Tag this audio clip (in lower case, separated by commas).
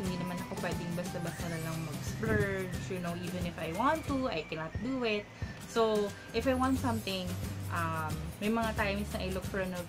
speech, music